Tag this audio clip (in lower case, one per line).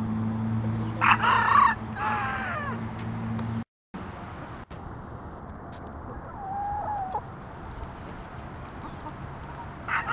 cluck
rooster
fowl
crowing